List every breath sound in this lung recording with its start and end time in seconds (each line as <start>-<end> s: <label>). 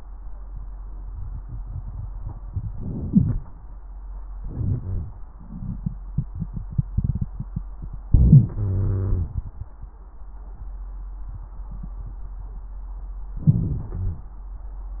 2.74-3.42 s: inhalation
3.08-3.42 s: wheeze
4.39-4.81 s: inhalation
4.81-5.22 s: exhalation
4.81-5.22 s: wheeze
8.12-8.54 s: inhalation
8.54-9.32 s: exhalation
8.54-9.32 s: wheeze
13.45-13.95 s: inhalation
13.95-14.38 s: exhalation